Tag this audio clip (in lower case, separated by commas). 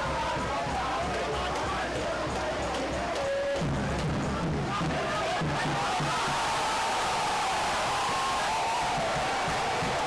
speech, music